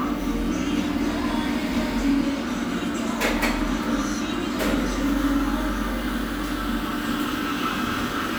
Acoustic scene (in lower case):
cafe